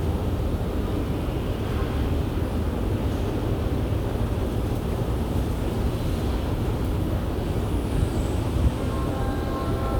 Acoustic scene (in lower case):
subway station